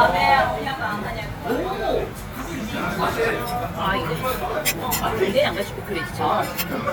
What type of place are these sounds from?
restaurant